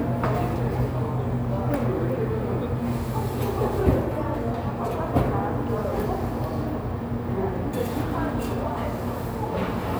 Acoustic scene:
cafe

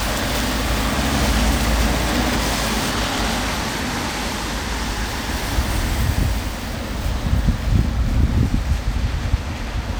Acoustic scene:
street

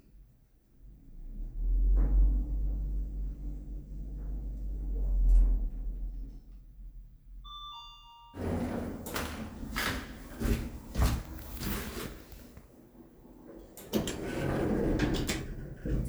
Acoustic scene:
elevator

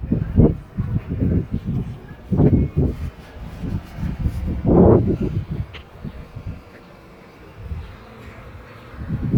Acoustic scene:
residential area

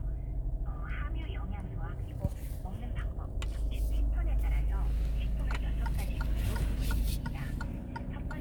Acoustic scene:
car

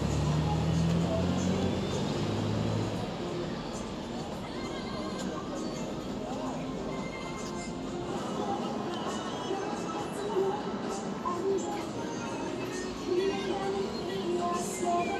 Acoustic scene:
street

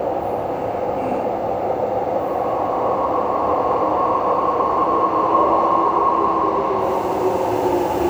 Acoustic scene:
subway station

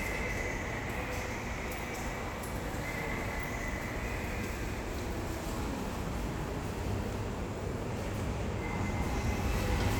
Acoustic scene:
subway station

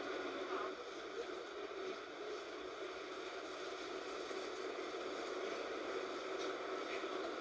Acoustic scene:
bus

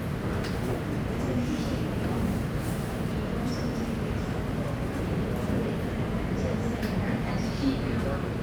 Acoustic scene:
subway station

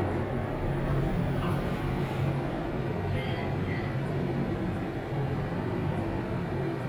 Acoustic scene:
elevator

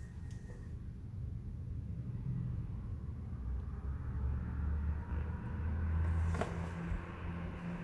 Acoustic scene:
elevator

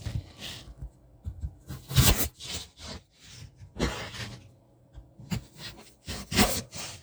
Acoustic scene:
kitchen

